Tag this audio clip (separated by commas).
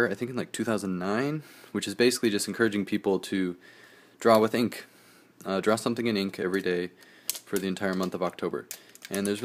Tools, Speech